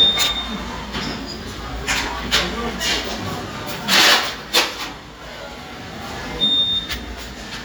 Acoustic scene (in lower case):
restaurant